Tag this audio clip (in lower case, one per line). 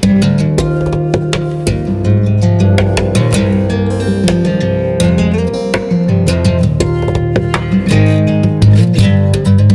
music
tapping (guitar technique)
guitar
plucked string instrument
musical instrument
acoustic guitar